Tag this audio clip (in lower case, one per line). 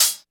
music
hi-hat
cymbal
percussion
musical instrument